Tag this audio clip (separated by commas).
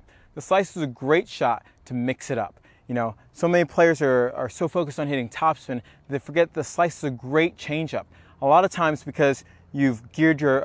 Speech